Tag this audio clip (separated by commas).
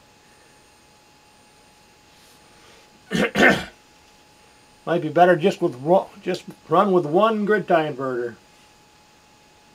Speech